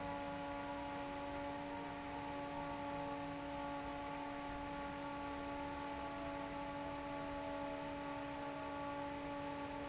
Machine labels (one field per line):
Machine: fan